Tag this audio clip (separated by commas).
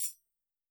Musical instrument, Music, Percussion, Tambourine